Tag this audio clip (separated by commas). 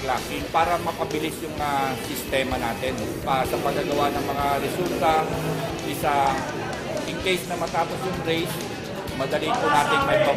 Music, outside, rural or natural, inside a public space, Speech